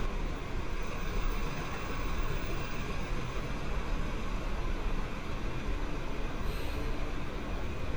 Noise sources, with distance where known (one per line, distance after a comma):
unidentified impact machinery